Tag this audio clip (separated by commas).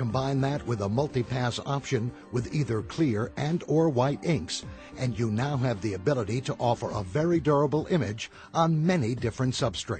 Music, Speech